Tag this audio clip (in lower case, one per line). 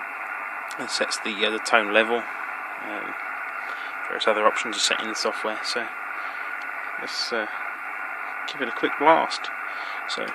speech